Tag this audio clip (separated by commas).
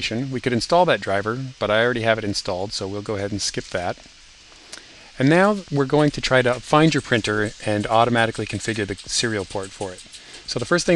Speech